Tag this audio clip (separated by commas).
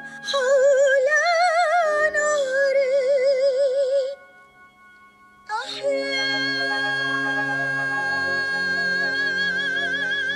Music, outside, rural or natural